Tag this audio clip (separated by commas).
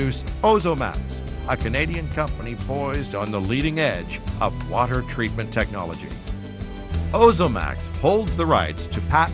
Music, Speech